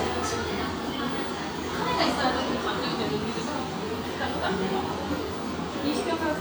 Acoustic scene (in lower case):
cafe